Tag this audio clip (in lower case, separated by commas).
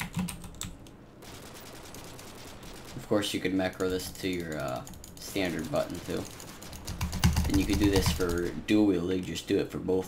typing